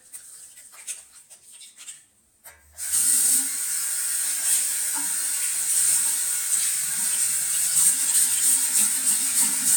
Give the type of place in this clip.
restroom